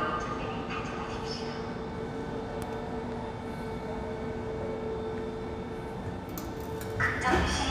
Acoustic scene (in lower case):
subway station